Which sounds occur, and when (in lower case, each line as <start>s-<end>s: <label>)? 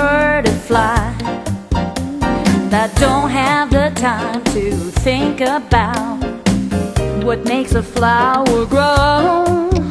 0.0s-1.3s: female singing
0.0s-9.9s: music
2.7s-6.2s: female singing
7.2s-9.9s: female singing